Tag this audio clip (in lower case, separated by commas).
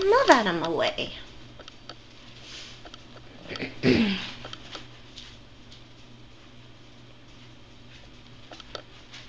speech